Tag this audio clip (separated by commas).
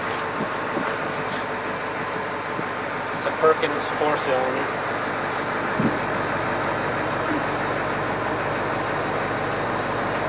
Vehicle, Speech, Truck